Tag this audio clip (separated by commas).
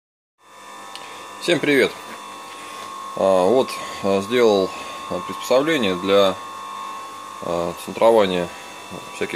Tools, Speech